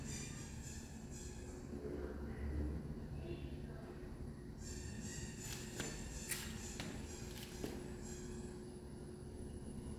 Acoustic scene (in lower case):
elevator